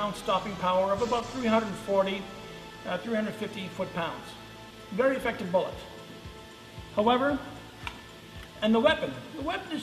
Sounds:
Speech

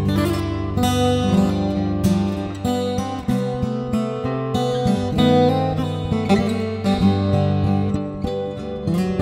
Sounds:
Music

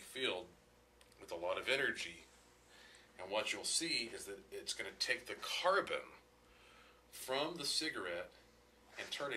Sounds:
Speech

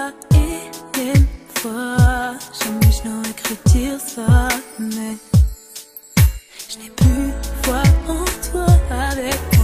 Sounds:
Music

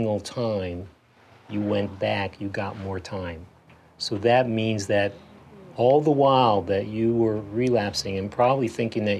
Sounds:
Speech

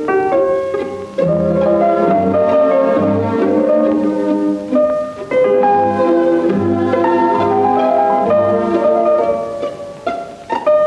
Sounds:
inside a small room, Piano, Music, Classical music

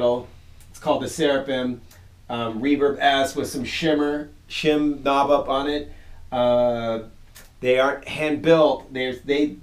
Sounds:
Speech

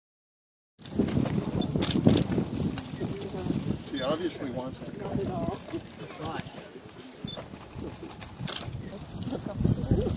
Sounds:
Bird, Speech

